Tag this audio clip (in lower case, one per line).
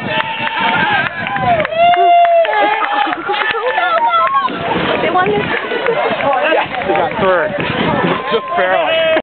wind noise (microphone)
wind